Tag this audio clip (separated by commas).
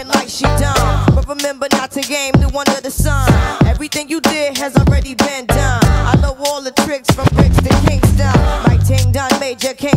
Rapping